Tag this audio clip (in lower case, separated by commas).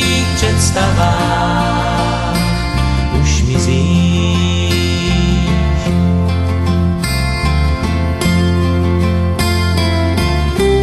music, christian music